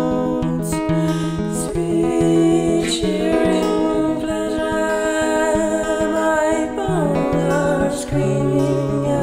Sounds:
music

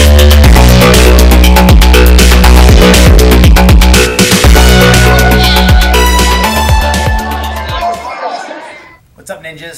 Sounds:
dubstep

